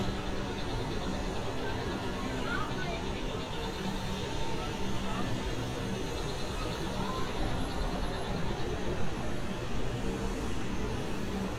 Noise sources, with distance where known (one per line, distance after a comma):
engine of unclear size
unidentified human voice, far